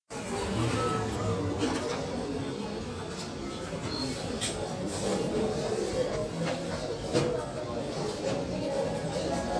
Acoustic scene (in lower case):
crowded indoor space